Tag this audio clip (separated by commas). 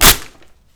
Tearing